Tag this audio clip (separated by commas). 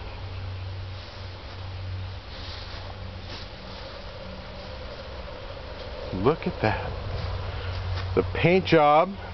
Speech